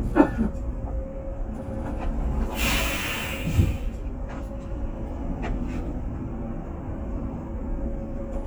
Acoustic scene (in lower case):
bus